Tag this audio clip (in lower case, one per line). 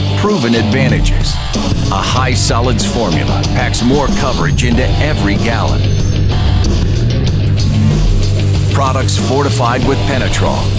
music
speech